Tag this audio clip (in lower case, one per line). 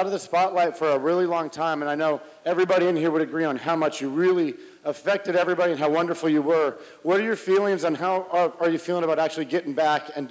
speech